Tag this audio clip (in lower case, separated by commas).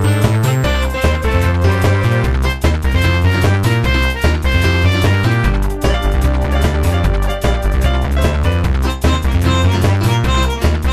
music